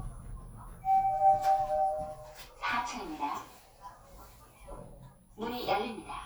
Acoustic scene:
elevator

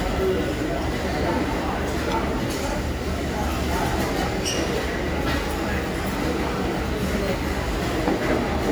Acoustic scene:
crowded indoor space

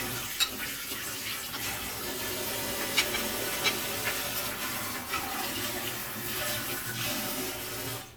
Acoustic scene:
kitchen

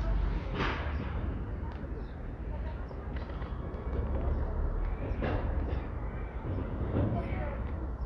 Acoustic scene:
residential area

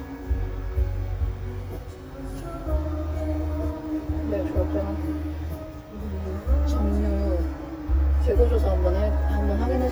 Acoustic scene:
car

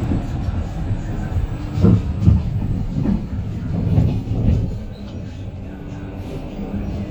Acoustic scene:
bus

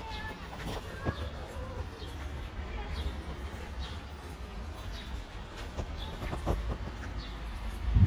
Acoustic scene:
residential area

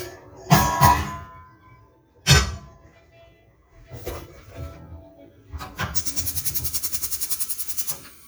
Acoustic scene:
kitchen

